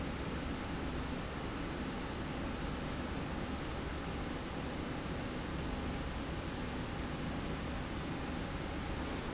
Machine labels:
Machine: slide rail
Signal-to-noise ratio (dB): -6 dB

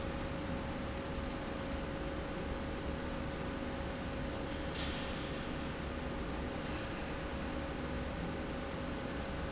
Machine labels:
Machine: slide rail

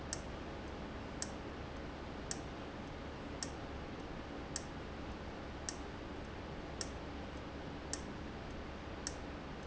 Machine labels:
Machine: valve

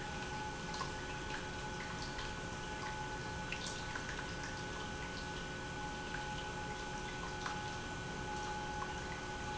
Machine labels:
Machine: pump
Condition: normal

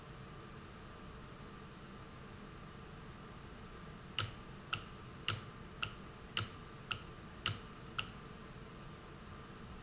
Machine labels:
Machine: valve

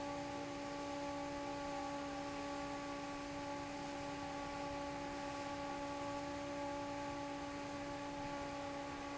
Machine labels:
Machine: fan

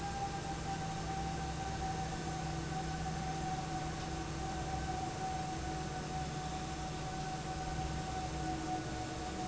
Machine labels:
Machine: fan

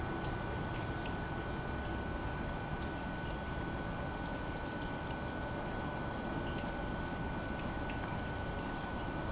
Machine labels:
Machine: pump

